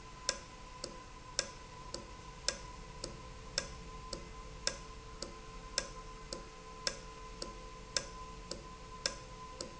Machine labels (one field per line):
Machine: valve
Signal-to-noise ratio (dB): 6 dB